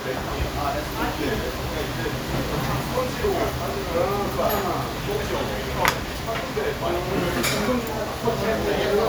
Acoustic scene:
restaurant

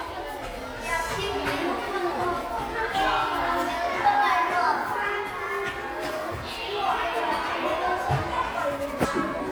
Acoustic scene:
crowded indoor space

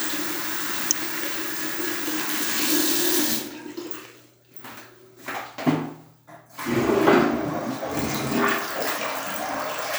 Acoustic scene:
restroom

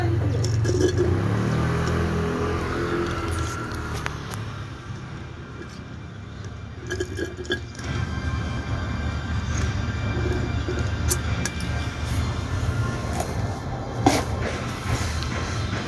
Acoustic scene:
residential area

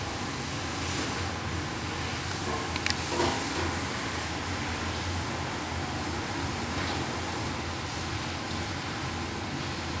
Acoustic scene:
restaurant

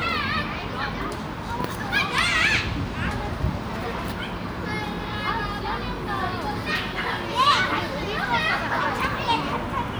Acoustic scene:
park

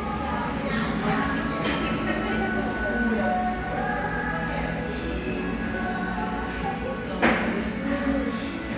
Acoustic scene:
crowded indoor space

